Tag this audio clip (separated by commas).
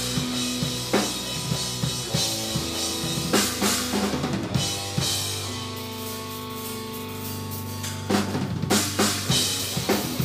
Percussion, Snare drum, Drum roll, Drum kit, Bass drum, Drum, Rimshot